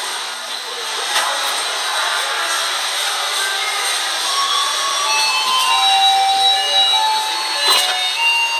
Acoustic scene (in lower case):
subway station